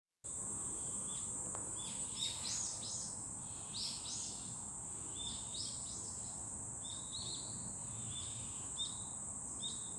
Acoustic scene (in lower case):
park